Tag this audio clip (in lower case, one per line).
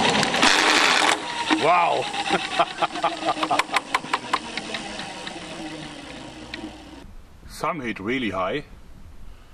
speech